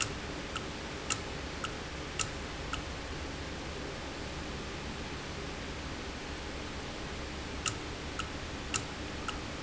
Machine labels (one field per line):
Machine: valve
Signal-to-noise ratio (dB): -6 dB